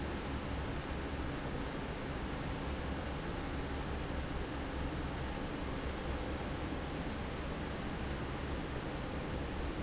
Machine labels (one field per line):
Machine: fan